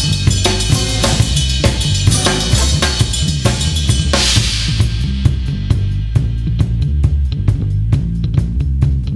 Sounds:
drum kit, bass drum, snare drum, drum roll, drum, percussion, rimshot

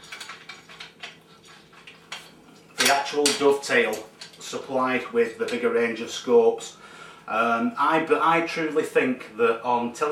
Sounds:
speech, inside a small room

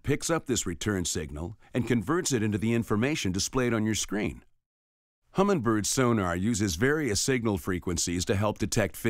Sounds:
speech

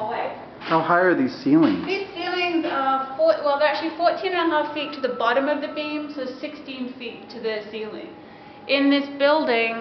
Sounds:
conversation, speech, female speech

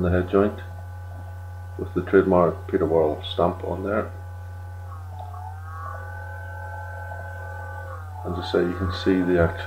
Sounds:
speech

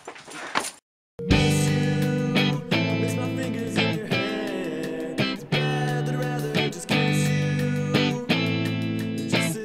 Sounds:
music, musical instrument

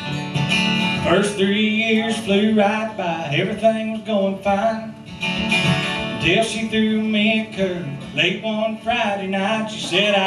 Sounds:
music

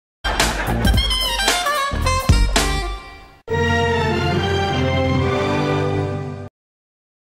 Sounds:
music

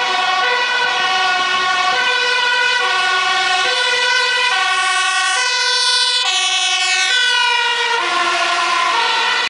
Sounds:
vehicle

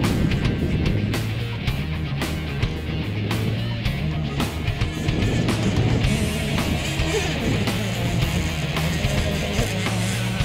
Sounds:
music, speedboat

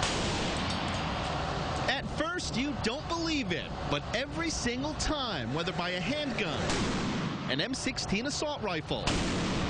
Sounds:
speech, chink

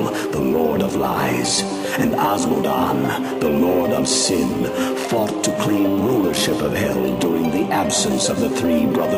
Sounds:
speech, music

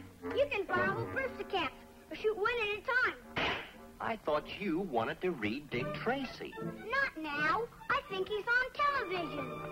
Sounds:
music, speech

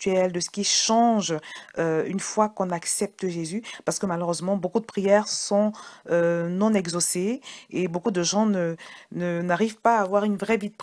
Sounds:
speech

